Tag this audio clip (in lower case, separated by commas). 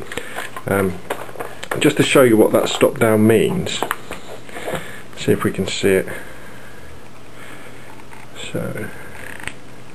speech, single-lens reflex camera